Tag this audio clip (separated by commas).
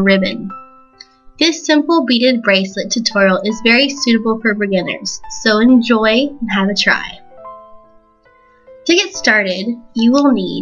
Speech, Music